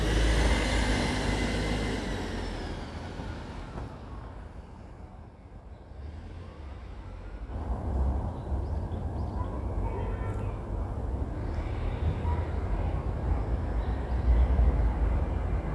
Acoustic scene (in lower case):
residential area